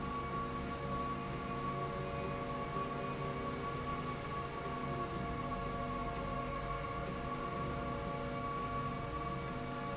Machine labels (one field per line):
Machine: slide rail